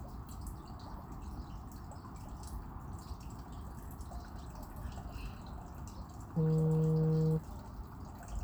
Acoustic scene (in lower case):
park